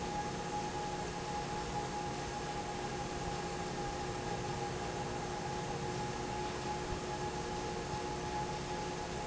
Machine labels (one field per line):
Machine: fan